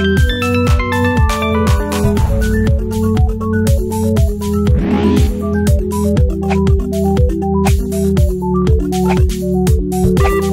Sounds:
Music

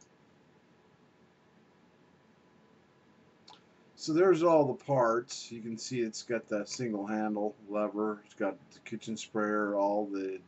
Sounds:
Speech

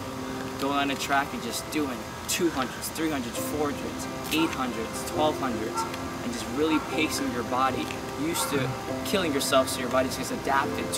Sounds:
Music, Speech

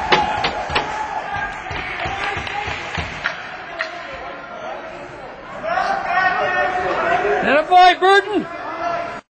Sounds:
Speech

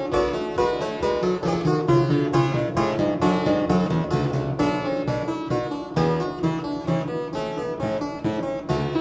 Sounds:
Piano, Keyboard (musical)

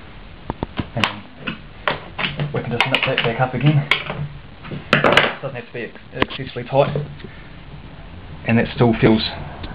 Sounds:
Speech

